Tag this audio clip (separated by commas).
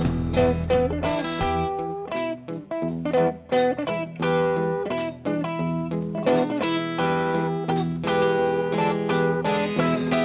Music, Guitar, Plucked string instrument, Musical instrument